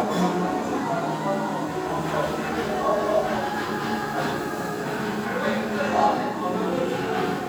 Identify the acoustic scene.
restaurant